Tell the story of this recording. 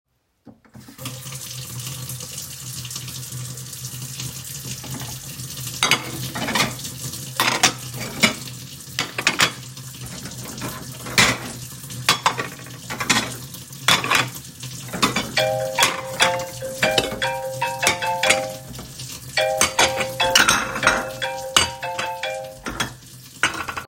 I opened the tap and started stacking dishes while the water was running. While I was still stacking the dishes and the tap was running, the phone started ringing